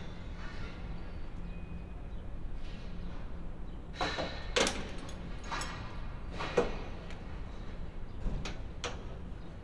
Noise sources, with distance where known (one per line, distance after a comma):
non-machinery impact, near